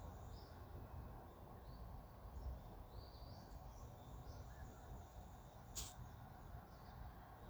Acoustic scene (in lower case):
park